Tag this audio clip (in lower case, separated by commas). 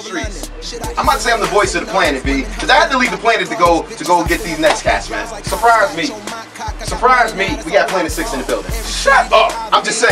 music, speech